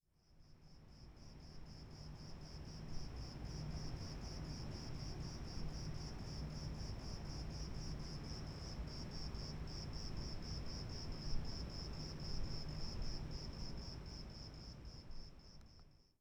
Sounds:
Insect, Animal, Wild animals, Cricket

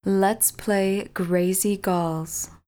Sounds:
Human voice, woman speaking, Speech

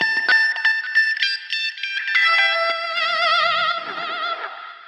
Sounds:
Musical instrument, Plucked string instrument, Music, Guitar

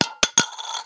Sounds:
home sounds, Coin (dropping)

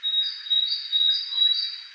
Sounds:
Animal, Wild animals, Bird

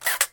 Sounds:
Mechanisms, Camera

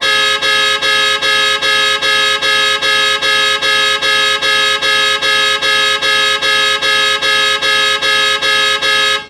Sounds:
Car, Vehicle, Alarm, Motor vehicle (road)

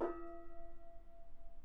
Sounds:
Gong, Music, Percussion, Musical instrument

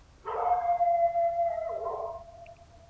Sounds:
Animal, pets, Dog

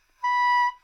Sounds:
woodwind instrument, Musical instrument, Music

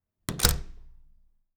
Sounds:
Slam, Door, home sounds

